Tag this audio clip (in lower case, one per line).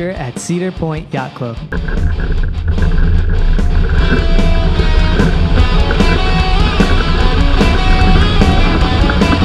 speech
music
sailboat